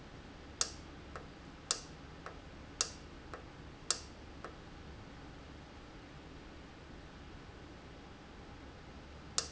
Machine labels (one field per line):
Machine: valve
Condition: normal